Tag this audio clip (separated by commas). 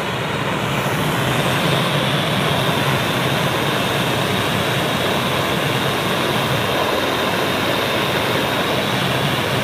blowtorch igniting